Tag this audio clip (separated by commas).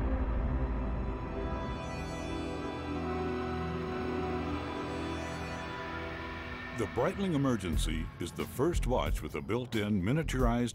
Music, Speech